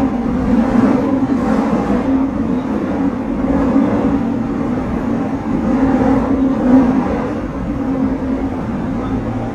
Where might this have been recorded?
on a subway train